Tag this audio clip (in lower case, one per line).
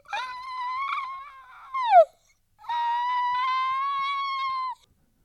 squeak